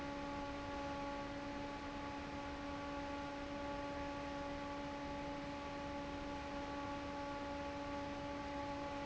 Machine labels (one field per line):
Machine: fan